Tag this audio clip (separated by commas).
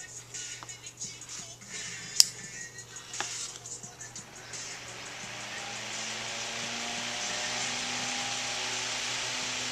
Mechanical fan, Music